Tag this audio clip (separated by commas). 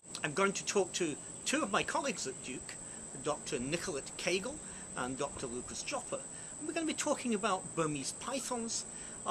Speech, outside, rural or natural